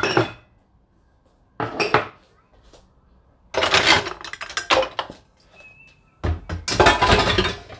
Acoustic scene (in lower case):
kitchen